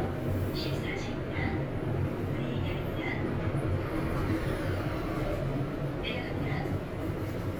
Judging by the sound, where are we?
in an elevator